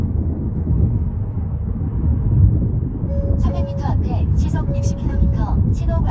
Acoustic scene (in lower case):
car